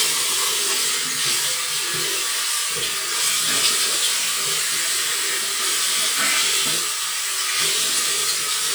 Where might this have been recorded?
in a restroom